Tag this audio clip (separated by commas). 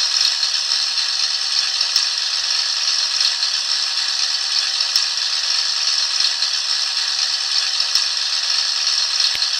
Medium engine (mid frequency), Engine, Idling